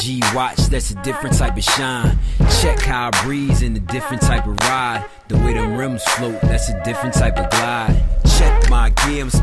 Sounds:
Music

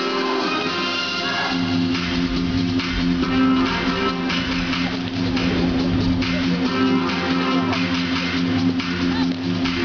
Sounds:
Music, inside a public space

